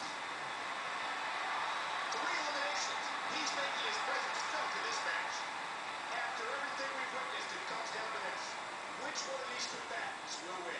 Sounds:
Speech

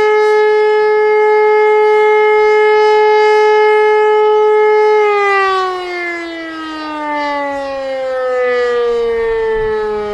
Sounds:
civil defense siren

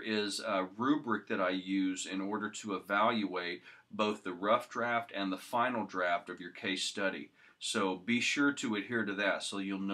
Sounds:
Speech

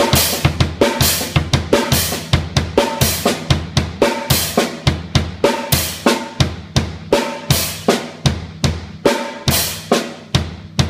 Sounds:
Drum, Drum kit, Music, Musical instrument

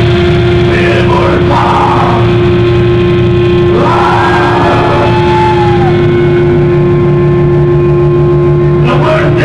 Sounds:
Speech

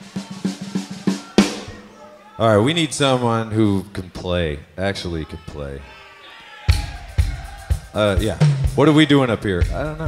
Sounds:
Rimshot, Speech, Drum kit, Drum, Snare drum

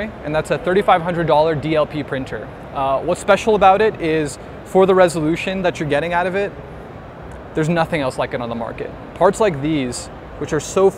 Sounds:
Speech

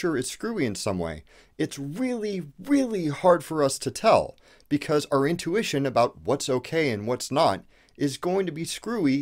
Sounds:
Speech

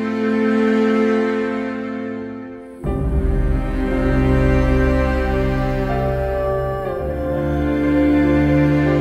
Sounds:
Background music, Music

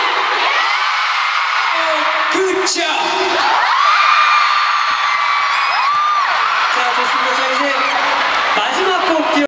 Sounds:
Speech

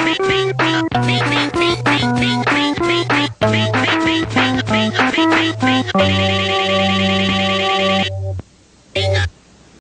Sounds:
Music, Harpsichord

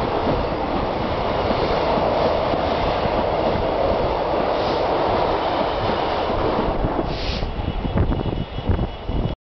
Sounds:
Vehicle

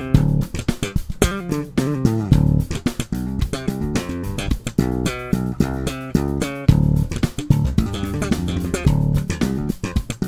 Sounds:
Music, Bass guitar

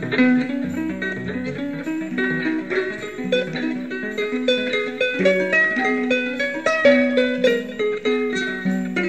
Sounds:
Harp, Music

